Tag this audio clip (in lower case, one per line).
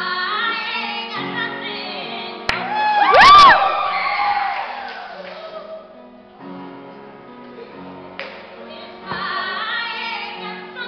female singing
music